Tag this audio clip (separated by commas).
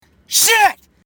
Human voice, Shout, Yell